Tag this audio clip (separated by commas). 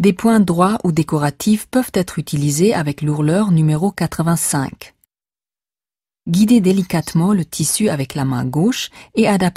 Speech